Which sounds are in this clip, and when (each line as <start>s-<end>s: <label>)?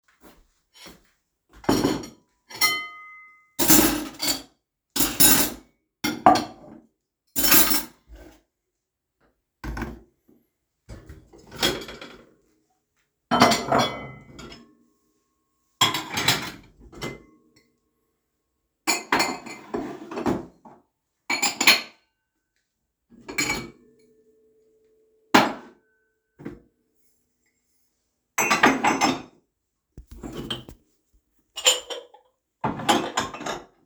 0.9s-0.9s: cutlery and dishes
1.6s-3.1s: cutlery and dishes
3.6s-6.8s: cutlery and dishes
7.3s-8.4s: cutlery and dishes
9.6s-10.1s: cutlery and dishes
11.5s-12.0s: cutlery and dishes
13.3s-14.9s: cutlery and dishes
15.8s-17.3s: cutlery and dishes
18.8s-20.7s: cutlery and dishes
21.3s-21.9s: cutlery and dishes
23.2s-23.8s: cutlery and dishes
25.3s-25.7s: cutlery and dishes
26.4s-26.6s: cutlery and dishes
28.3s-29.3s: cutlery and dishes
30.0s-30.8s: cutlery and dishes
31.5s-32.1s: cutlery and dishes
32.6s-33.7s: cutlery and dishes